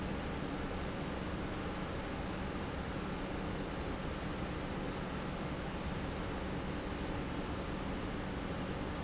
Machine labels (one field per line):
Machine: pump